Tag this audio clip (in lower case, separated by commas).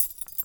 keys jangling, home sounds